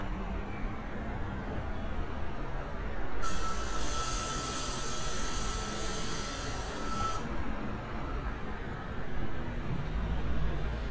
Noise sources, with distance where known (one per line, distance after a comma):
unidentified alert signal, near